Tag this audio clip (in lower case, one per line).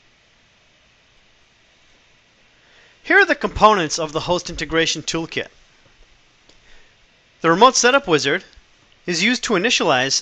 speech